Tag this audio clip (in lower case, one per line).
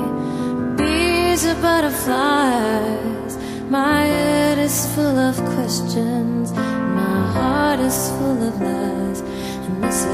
music